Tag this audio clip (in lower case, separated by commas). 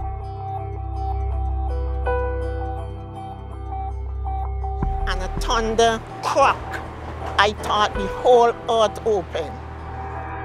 music, speech